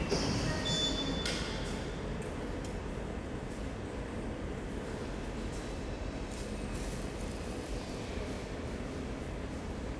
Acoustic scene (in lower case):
subway station